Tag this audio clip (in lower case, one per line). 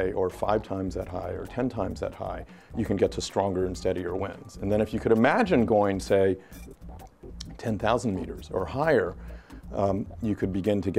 speech
music